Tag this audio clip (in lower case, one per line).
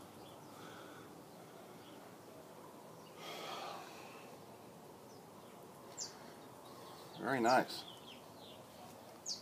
bird